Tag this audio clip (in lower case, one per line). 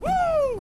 human voice
shout